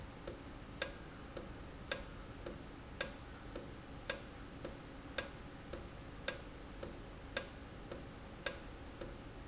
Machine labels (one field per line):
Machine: valve